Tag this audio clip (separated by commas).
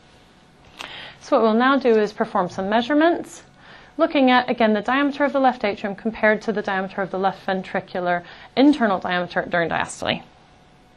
Speech